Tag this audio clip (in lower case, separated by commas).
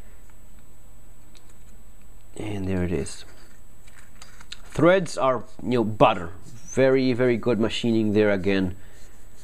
speech